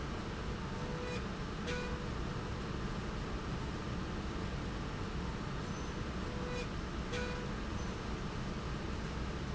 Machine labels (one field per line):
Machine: slide rail